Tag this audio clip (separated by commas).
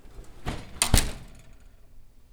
Door, home sounds, Slam